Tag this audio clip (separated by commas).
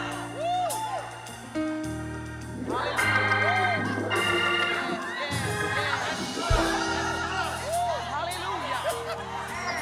Speech, Music